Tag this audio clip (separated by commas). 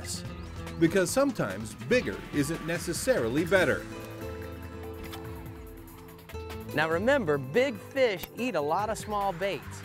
Speech, Music